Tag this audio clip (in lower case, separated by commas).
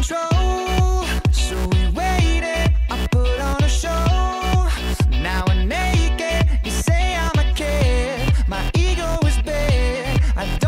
music